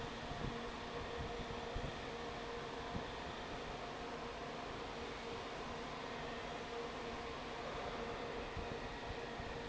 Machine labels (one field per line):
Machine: fan